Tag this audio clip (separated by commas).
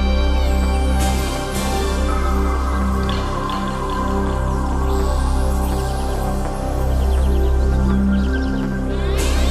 Music